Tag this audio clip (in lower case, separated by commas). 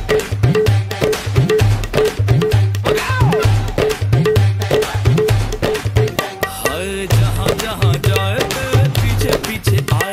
playing tabla